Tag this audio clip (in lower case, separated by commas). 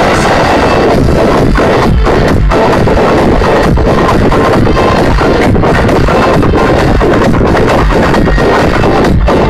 music